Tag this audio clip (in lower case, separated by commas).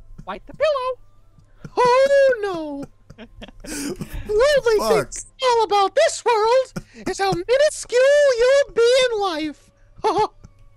speech